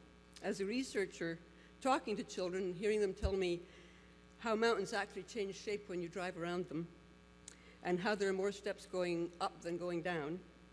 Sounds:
Narration, Speech, Female speech

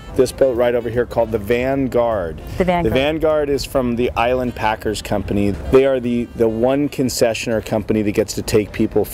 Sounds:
Speech, Music

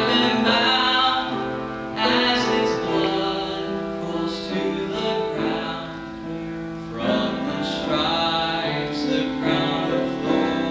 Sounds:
Music, Male singing

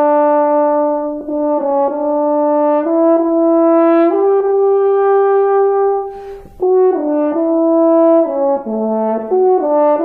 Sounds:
playing french horn

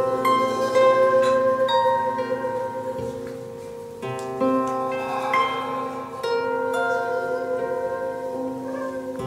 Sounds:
Musical instrument, Harp, playing harp, Music

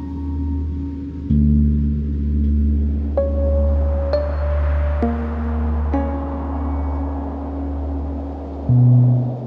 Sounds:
Music, Ambient music

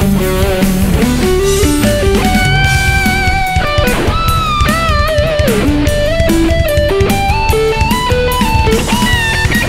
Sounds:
Music

